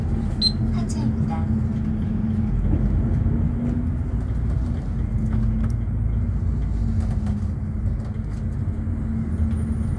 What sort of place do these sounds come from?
bus